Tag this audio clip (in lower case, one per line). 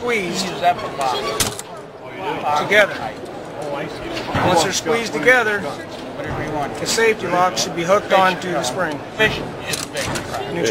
speech